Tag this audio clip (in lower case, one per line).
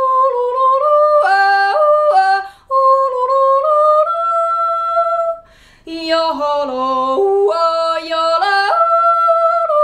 yodelling